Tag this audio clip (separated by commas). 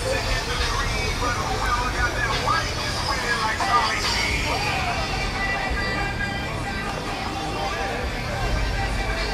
Music, Speech